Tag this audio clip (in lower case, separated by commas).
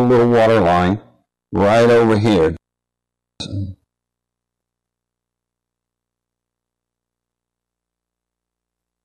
speech